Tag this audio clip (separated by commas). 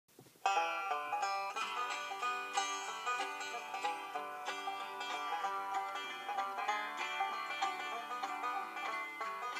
Banjo